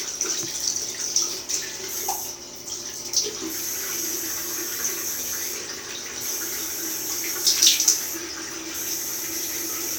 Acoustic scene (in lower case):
restroom